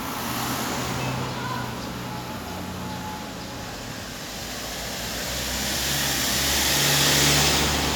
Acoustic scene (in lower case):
street